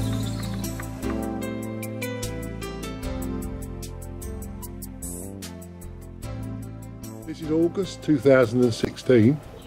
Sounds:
music, bird, speech

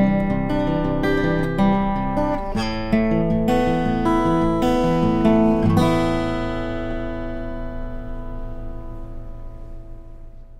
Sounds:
music, plucked string instrument, guitar, acoustic guitar, musical instrument

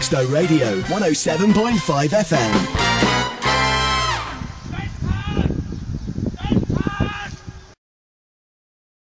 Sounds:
speech, music

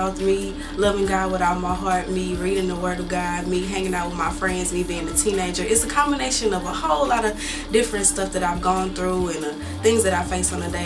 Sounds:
music, speech

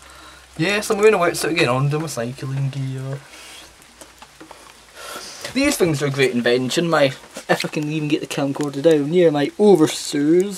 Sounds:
speech, rain on surface

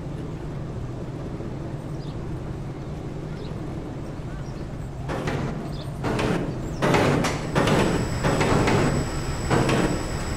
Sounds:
roller coaster running

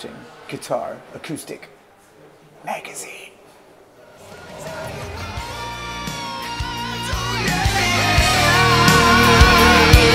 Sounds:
guitar, acoustic guitar, speech, music, plucked string instrument, strum, musical instrument

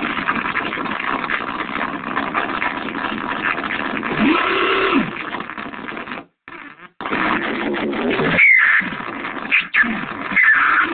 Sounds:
music, synthesizer

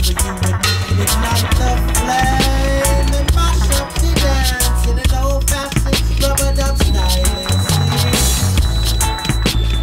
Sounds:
music, reggae

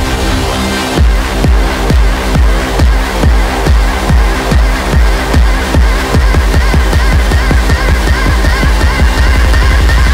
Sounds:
music, electronic dance music, electronic music

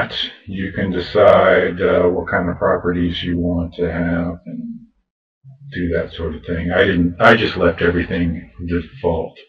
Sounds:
speech

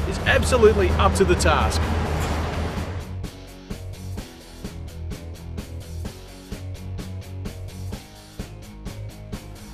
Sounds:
music, speech

